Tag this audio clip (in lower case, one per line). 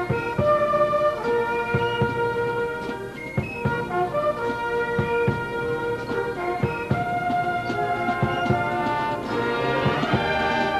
music